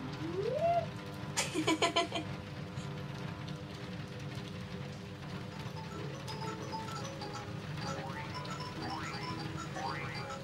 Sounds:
music

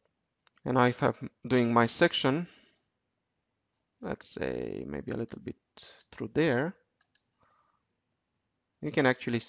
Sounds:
speech, clicking

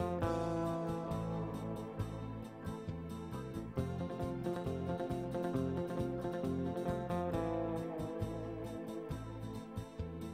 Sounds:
music, background music

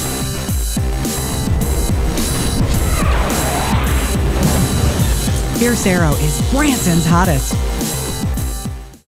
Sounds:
speech, music

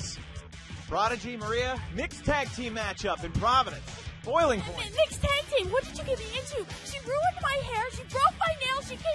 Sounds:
music, speech

